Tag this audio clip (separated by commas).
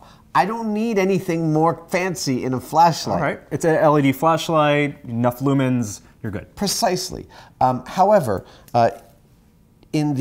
Speech